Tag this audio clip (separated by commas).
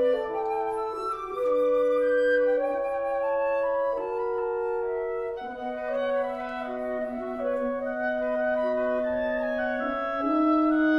Music, Orchestra, Musical instrument